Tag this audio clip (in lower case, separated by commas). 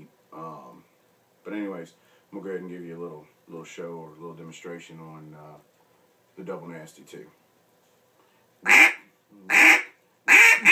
animal, quack, duck, speech